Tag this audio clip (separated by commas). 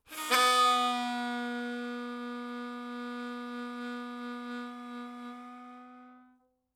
Musical instrument, Music, Harmonica